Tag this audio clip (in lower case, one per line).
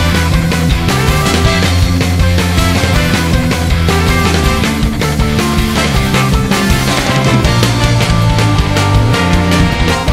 background music
music